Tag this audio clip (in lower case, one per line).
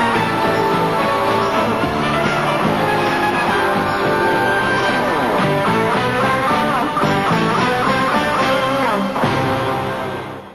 music